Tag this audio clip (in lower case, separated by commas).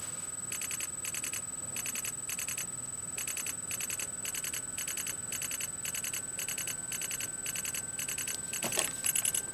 telephone bell ringing, telephone